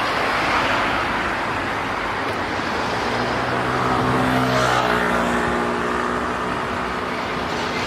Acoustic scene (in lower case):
street